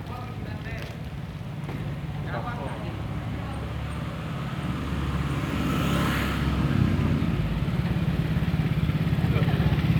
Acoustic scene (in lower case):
residential area